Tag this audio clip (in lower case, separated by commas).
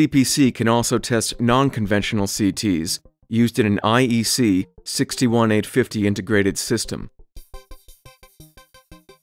synthesizer